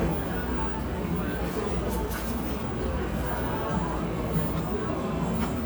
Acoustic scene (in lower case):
cafe